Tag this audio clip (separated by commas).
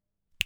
Finger snapping, Hands